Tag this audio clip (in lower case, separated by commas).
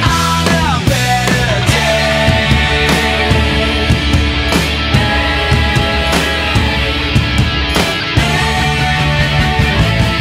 grunge, music